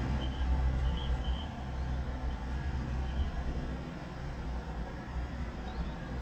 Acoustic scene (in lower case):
residential area